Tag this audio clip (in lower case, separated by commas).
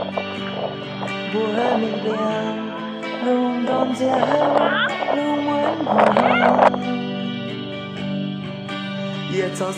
music